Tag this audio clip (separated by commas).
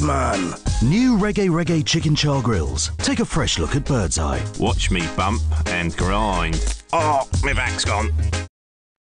Music, Speech